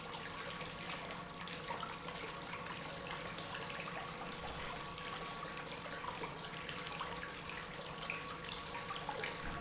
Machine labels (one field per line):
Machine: pump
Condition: normal